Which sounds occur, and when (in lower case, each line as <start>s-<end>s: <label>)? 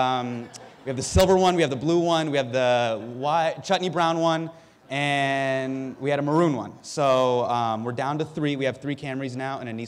0.0s-0.7s: male speech
0.0s-9.8s: background noise
0.4s-1.1s: laughter
0.8s-4.5s: male speech
4.5s-4.9s: breathing
4.8s-6.6s: male speech
6.8s-9.8s: male speech